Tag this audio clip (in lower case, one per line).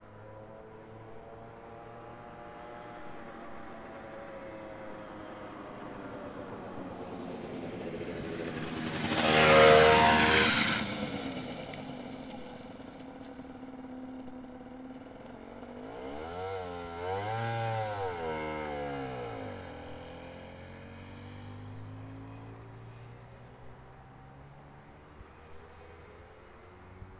vehicle
engine
motor vehicle (road)
motorcycle